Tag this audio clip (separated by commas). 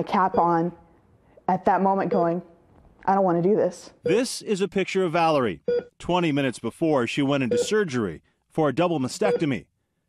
Speech